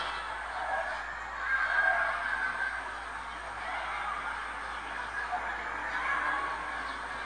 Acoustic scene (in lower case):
residential area